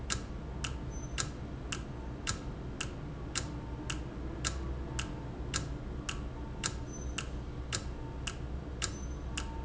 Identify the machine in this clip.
valve